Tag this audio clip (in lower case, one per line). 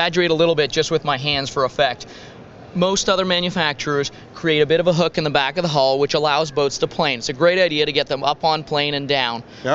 speech